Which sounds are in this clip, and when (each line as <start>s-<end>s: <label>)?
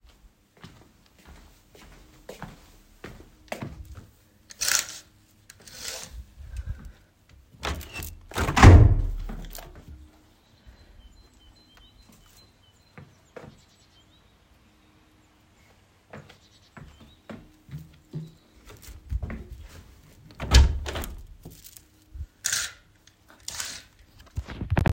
0.5s-4.1s: footsteps
7.6s-9.9s: window
16.1s-20.0s: footsteps
20.3s-21.8s: window